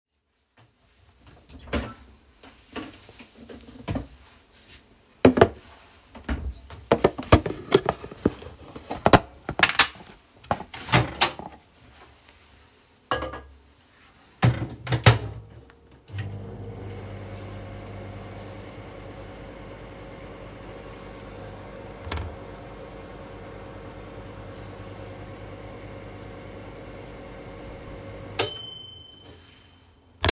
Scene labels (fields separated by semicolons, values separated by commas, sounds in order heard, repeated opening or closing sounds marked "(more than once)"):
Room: kitchen; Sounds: door, microwave, bell ringing